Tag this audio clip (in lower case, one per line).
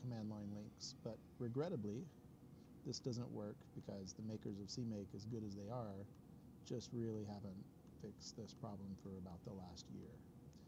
speech